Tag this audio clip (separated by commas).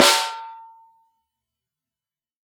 Musical instrument, Percussion, Drum, Snare drum, Music